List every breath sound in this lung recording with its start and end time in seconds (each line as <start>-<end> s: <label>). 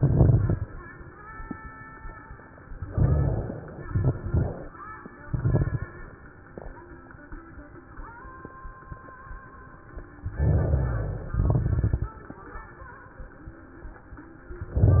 0.00-0.67 s: exhalation
0.00-0.67 s: crackles
2.92-3.74 s: inhalation
2.92-3.74 s: crackles
3.87-4.69 s: exhalation
3.87-4.69 s: crackles
10.38-11.29 s: inhalation
10.38-11.29 s: crackles
11.36-12.22 s: exhalation
11.36-12.22 s: crackles